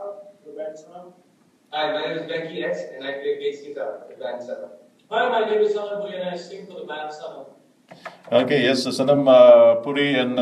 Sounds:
Speech

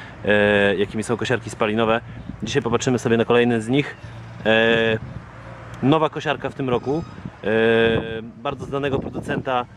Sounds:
Speech

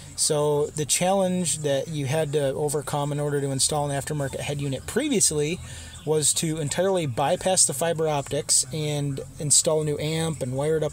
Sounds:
Speech

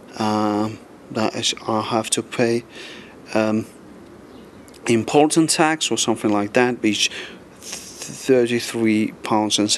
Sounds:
Speech

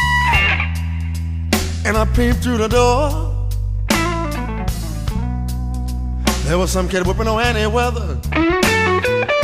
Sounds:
Steel guitar, Music, Singing

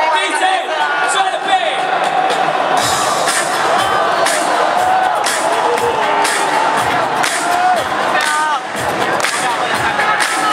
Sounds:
Speech, Burst, Music

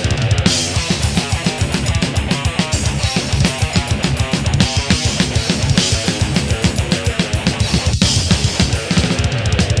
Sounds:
Music, Drum, Guitar, Drum kit, Musical instrument

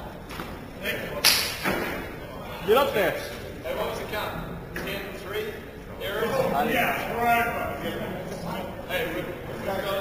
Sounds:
Speech

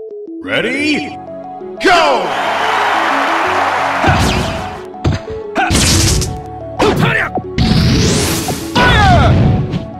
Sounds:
Sound effect, thwack

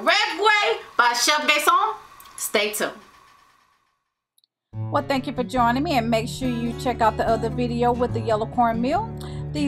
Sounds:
Music, Speech

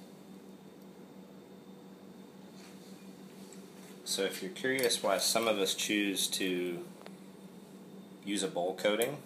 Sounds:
Speech

